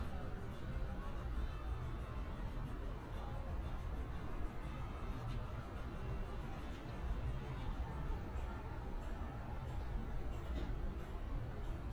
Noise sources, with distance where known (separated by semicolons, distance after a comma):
unidentified alert signal, far; music from an unclear source, far